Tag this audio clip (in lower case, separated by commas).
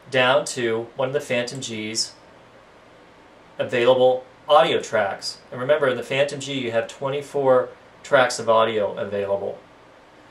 speech